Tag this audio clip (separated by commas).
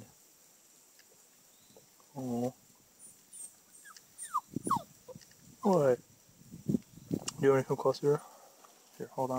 Animal, outside, rural or natural, Speech, Domestic animals, Dog